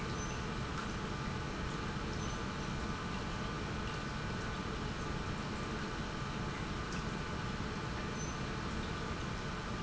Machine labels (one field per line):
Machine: pump